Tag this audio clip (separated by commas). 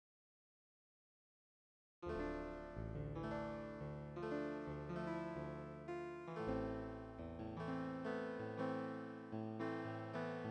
Music